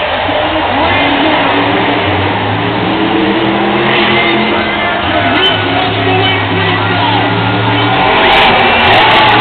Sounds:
truck, vehicle, speech

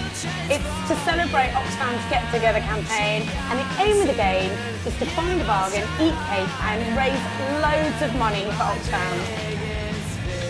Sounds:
music, speech

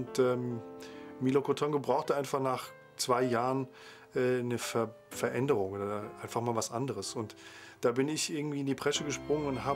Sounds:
speech, music

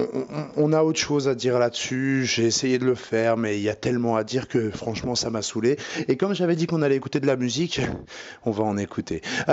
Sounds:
speech

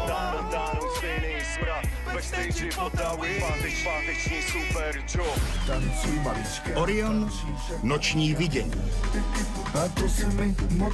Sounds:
music, speech

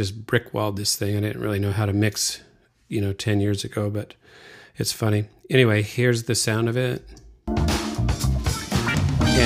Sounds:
music, speech

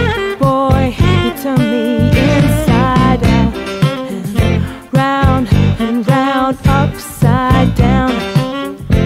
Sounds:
music, musical instrument

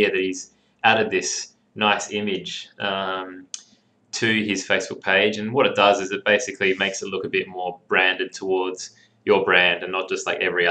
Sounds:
speech

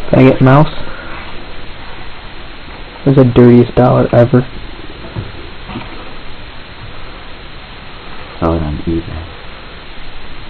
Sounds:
speech

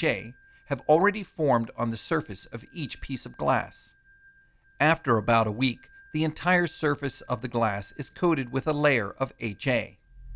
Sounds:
speech

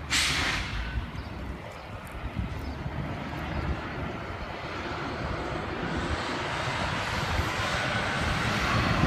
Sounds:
truck, vehicle

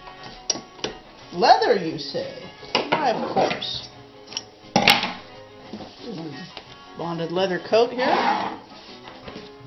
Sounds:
speech, music, sewing machine

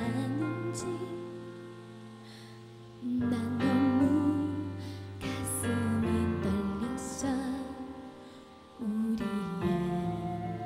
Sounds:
music

